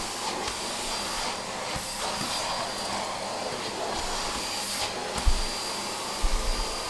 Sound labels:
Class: vacuum cleaner